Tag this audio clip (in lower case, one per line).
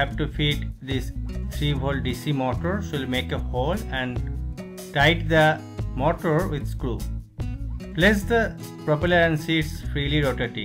music
speech